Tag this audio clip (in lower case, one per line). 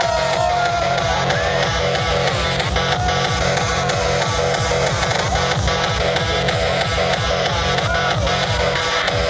music
electronic music
techno
speech